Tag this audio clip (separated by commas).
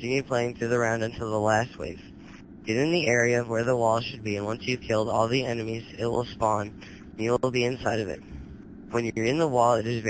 Speech